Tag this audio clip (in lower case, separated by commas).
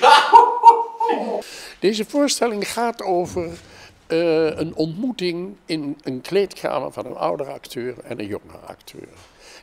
speech